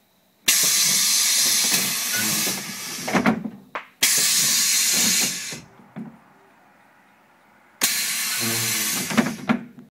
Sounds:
vehicle
sliding door

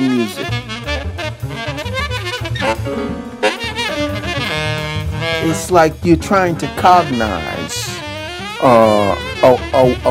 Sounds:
music
speech

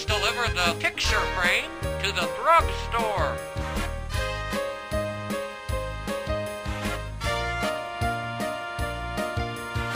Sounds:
music
speech

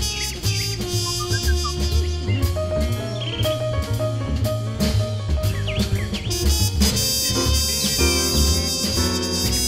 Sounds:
swing music
music

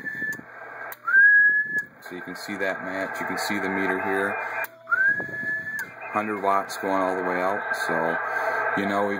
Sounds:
radio
speech

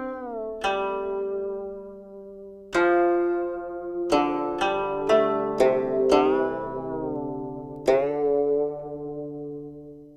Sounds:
zither
music

